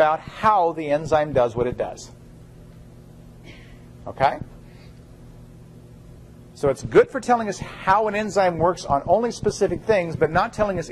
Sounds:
speech

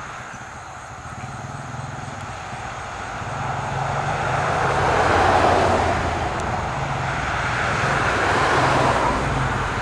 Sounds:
vehicle, motor vehicle (road)

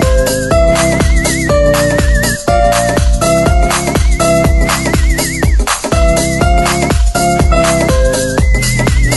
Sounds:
music, soundtrack music, electronic music, house music

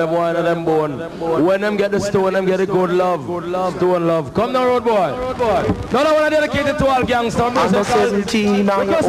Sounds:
speech

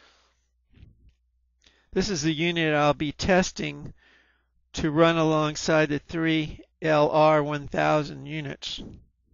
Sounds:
speech

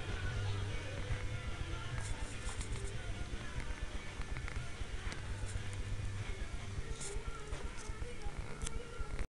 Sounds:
music

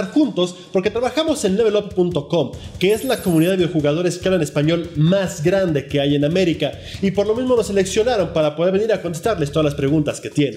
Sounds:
music, speech

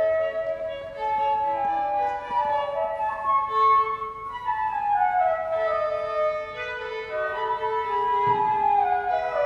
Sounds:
music, flute, fiddle, musical instrument

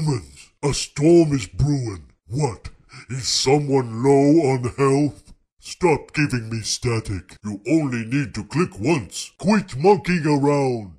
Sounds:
speech

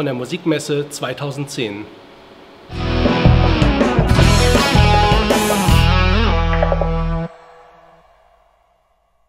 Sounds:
speech, music

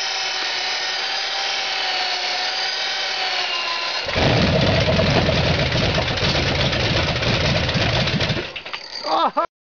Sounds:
speech, idling, engine

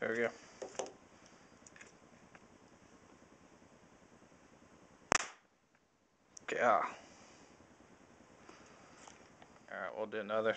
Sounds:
speech

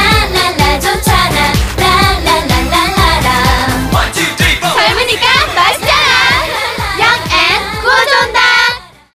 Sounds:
music, speech

